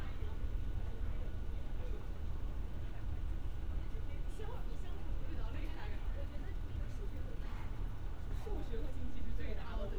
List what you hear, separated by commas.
person or small group talking